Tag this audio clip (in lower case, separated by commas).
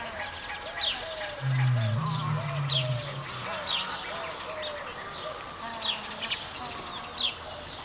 wild animals, animal, livestock, fowl, bird